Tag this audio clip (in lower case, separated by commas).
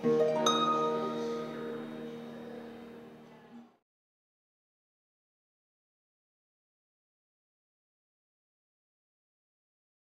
pizzicato, harp